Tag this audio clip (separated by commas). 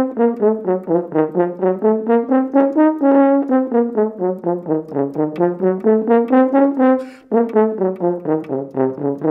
playing french horn